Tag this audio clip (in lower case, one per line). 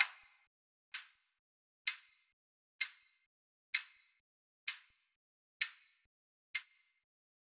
mechanisms
clock